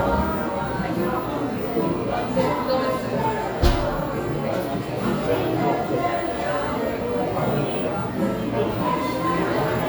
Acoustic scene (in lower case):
cafe